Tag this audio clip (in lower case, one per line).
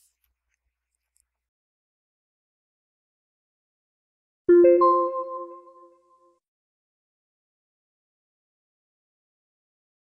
music
silence